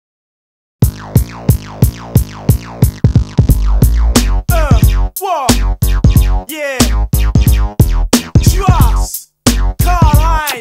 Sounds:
hip hop music
drum machine
music

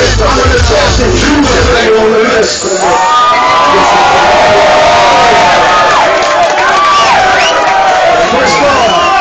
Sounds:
inside a public space
music
inside a large room or hall
speech

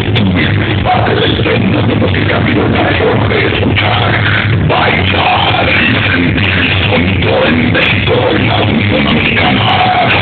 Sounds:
speech

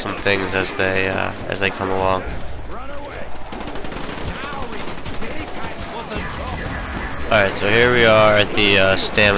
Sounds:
speech

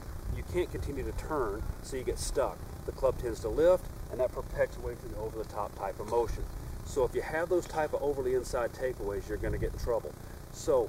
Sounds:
speech

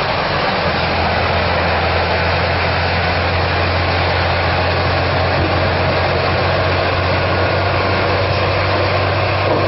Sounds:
vehicle

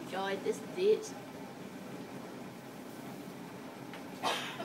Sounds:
speech

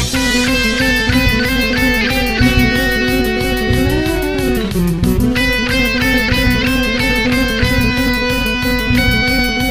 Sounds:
music
theme music

